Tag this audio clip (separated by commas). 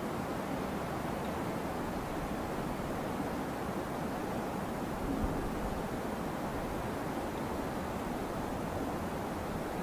woodpecker pecking tree